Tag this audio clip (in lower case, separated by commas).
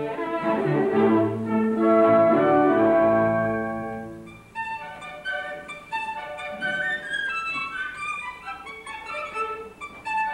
violin, music, musical instrument